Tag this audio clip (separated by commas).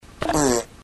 Fart